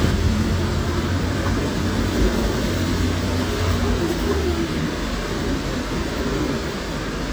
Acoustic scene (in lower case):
street